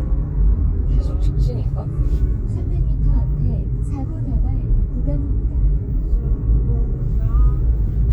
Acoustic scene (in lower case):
car